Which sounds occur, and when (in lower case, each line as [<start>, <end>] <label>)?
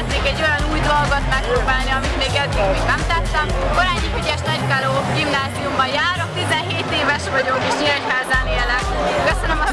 [0.00, 2.42] female speech
[0.00, 9.72] conversation
[0.00, 9.72] music
[1.24, 1.61] man speaking
[2.47, 2.72] human voice
[2.81, 3.48] female speech
[3.21, 3.56] man speaking
[3.70, 4.97] female speech
[5.11, 9.72] female speech